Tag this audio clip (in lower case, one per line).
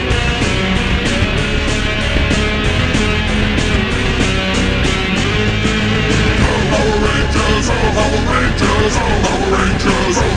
heavy metal
punk rock
psychedelic rock
rock music